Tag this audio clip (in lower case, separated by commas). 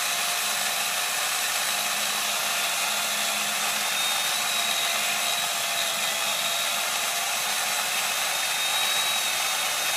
chainsaw